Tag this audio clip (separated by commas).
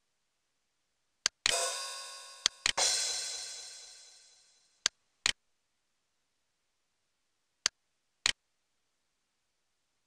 Music, Musical instrument